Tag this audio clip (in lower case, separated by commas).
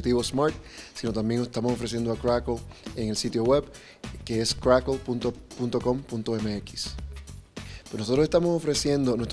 speech, music